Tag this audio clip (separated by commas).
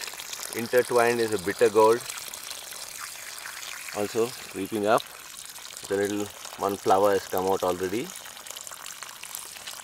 Speech